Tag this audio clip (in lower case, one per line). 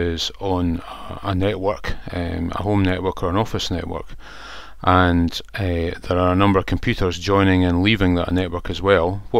speech